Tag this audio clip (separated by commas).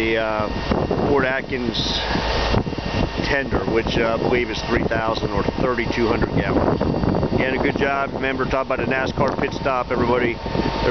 Truck, Speech, outside, rural or natural, Vehicle